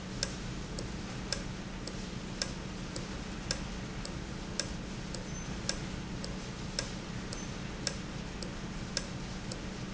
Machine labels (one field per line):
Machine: valve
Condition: normal